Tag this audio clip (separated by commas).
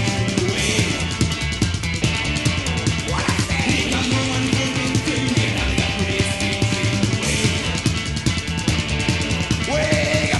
Music